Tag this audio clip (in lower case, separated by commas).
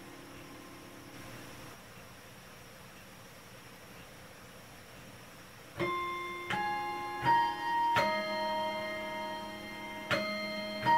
music